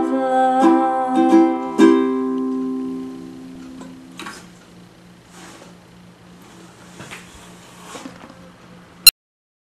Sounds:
Singing, Music, Musical instrument, Plucked string instrument, Ukulele

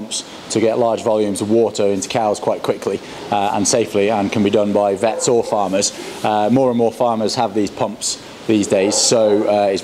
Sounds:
Speech

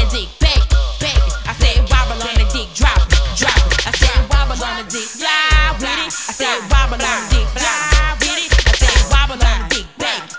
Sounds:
Hip hop music, Music

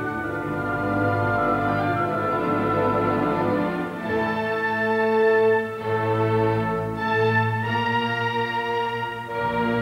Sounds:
Violin, Music, Musical instrument

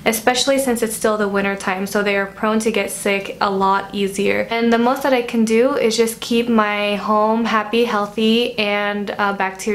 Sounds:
Speech

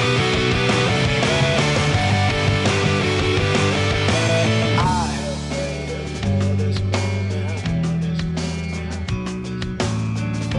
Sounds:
Rock music, Music

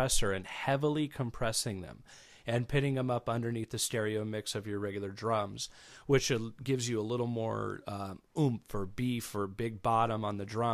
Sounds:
Speech

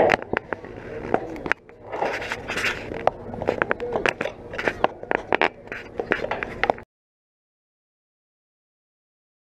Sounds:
Speech

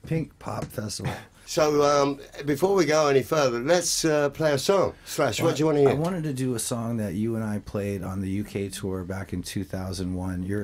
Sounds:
Speech

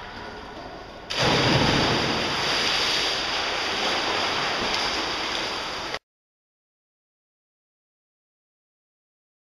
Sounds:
swimming

